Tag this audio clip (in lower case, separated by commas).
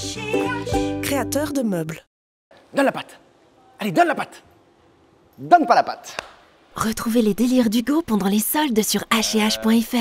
speech, music